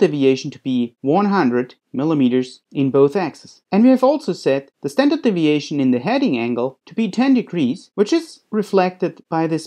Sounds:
Speech

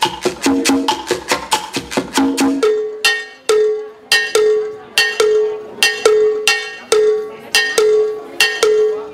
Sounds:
Speech, Maraca, Music

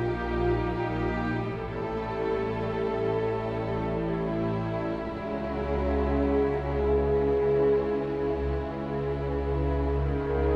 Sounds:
Music, Tender music

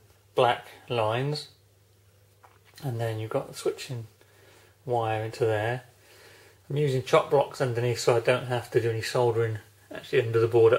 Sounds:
inside a small room, Speech

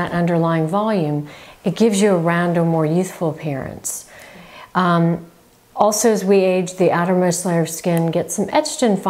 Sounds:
Speech

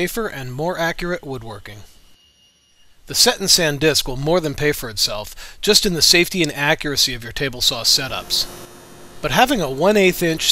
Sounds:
Speech

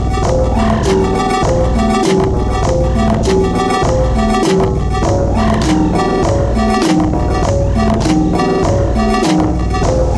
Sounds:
Music

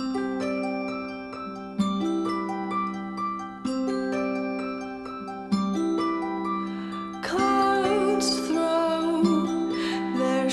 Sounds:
Music

